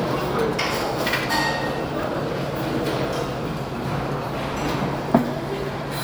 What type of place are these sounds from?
restaurant